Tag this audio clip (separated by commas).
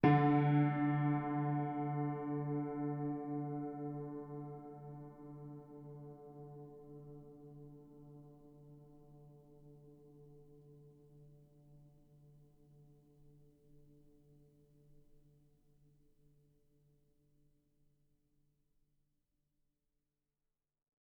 Keyboard (musical), Musical instrument, Piano, Music